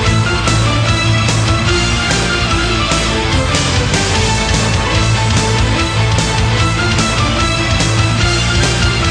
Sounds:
music

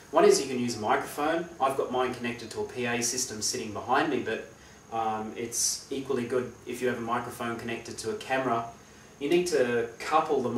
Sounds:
speech

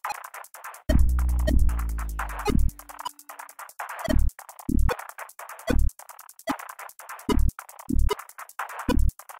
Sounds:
drum machine

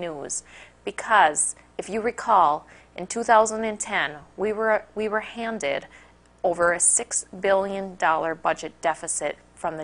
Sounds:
speech

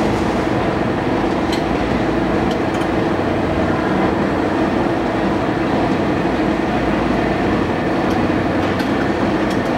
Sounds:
outside, urban or man-made

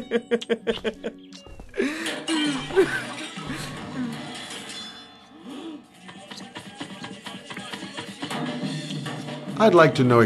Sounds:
speech

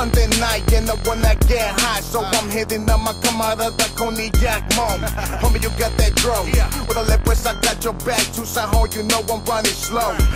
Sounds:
music

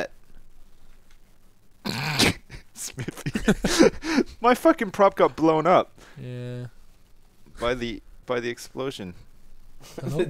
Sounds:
speech

